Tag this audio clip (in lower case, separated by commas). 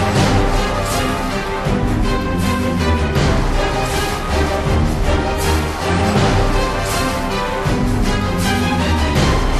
music